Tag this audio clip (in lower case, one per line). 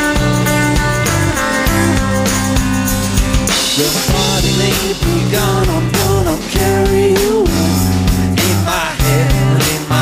music